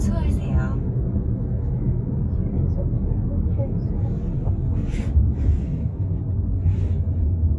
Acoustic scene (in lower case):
car